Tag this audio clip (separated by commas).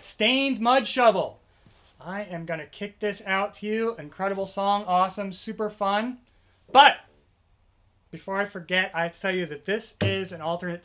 Speech